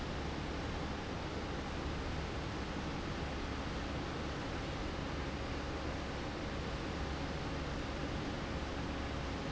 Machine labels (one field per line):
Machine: fan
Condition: abnormal